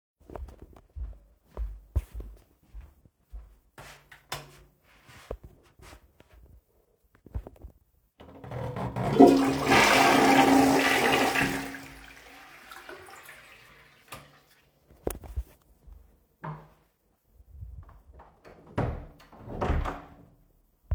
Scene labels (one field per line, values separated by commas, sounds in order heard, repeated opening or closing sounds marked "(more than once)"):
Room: bathroom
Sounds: footsteps, light switch, toilet flushing, door